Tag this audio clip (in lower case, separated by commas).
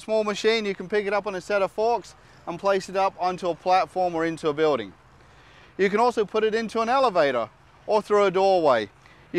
speech